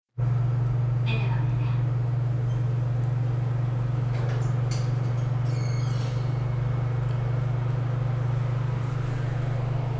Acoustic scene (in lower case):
elevator